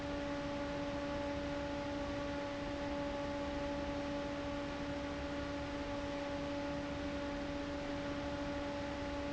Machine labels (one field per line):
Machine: fan